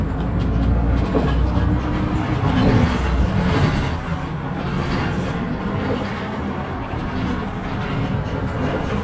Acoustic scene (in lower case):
bus